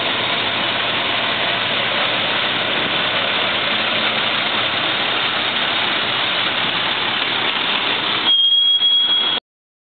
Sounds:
Truck, Vehicle

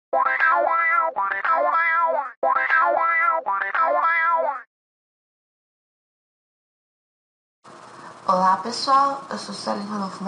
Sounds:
Speech, Music

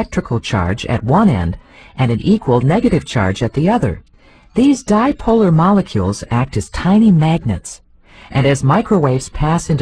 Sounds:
Speech

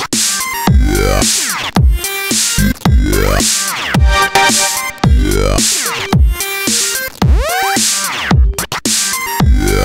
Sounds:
Music, Dubstep

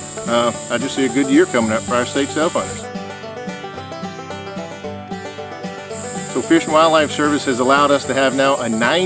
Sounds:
Speech, Music

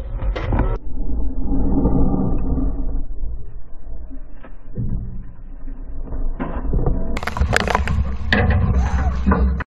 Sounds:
Speech

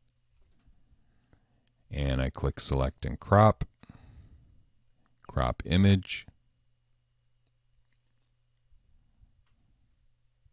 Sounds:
inside a small room, Speech

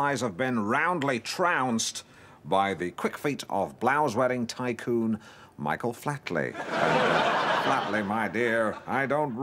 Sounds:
Speech

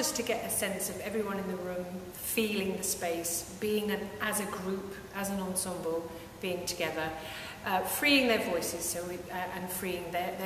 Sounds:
Speech

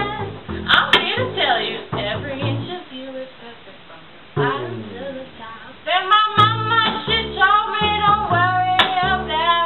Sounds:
Singing, Double bass, Music, Cello

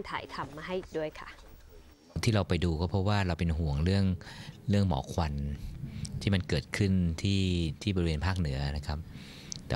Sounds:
Speech

